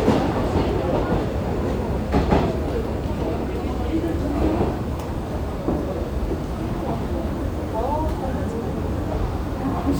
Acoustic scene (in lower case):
subway station